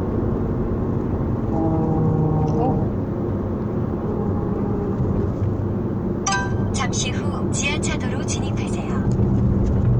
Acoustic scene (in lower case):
car